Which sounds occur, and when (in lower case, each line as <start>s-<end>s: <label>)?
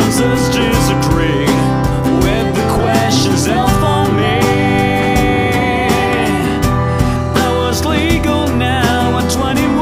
0.0s-9.8s: music